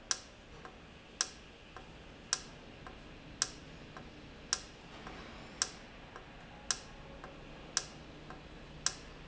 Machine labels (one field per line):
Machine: valve